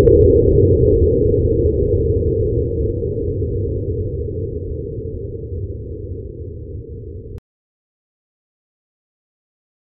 Low frequency rumbling and whooshing